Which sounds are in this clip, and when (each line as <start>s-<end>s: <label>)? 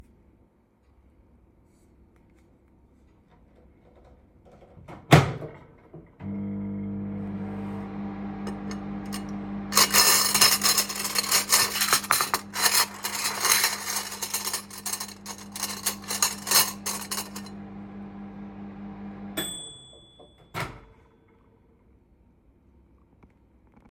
4.9s-20.9s: microwave
8.3s-17.7s: cutlery and dishes